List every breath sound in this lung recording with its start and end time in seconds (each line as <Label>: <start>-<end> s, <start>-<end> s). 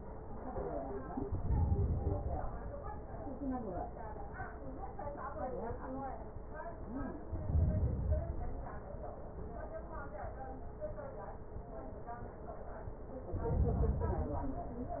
Inhalation: 1.28-2.78 s, 7.20-8.70 s, 13.22-14.76 s